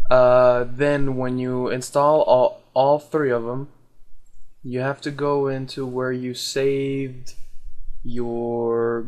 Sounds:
speech

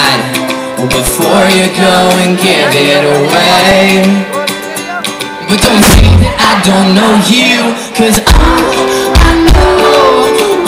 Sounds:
speech, music, whoop

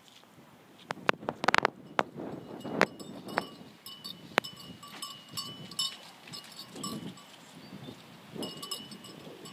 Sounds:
bovinae cowbell

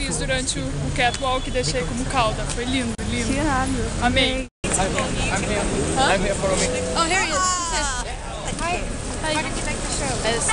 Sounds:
speech

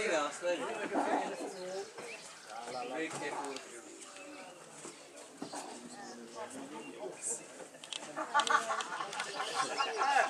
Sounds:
speech

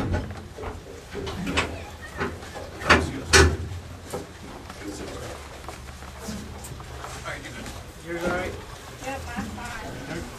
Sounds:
speech, canoe, vehicle

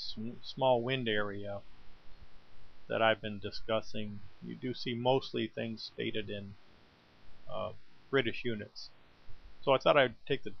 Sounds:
speech

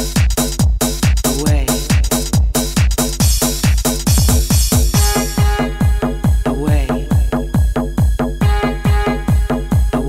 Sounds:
music

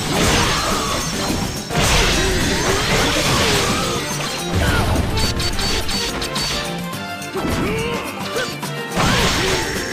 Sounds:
smash, music

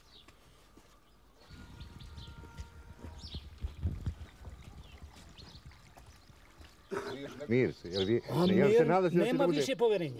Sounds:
speech

